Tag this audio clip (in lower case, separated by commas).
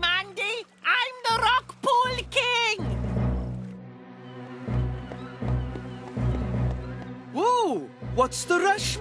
speech, music